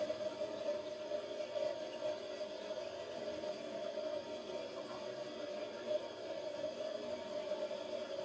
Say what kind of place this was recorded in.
restroom